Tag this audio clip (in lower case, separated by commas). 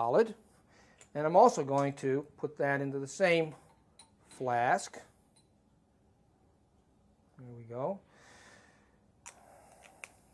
inside a small room, speech